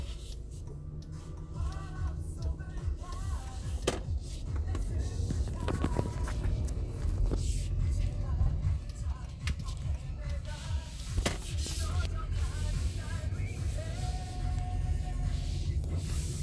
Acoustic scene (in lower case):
car